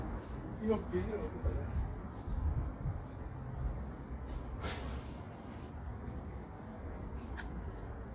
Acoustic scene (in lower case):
residential area